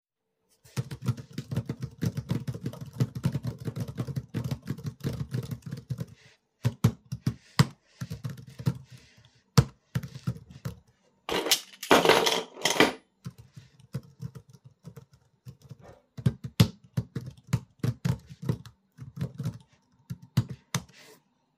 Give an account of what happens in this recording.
Keyboard typing plus picking up the keys